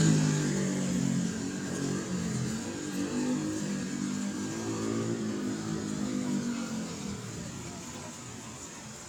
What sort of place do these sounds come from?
residential area